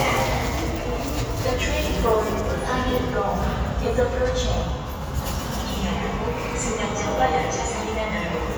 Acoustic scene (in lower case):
subway station